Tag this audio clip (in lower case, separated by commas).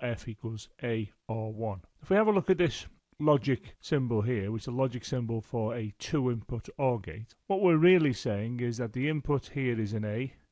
speech